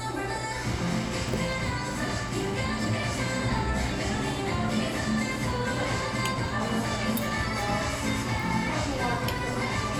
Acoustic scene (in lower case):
cafe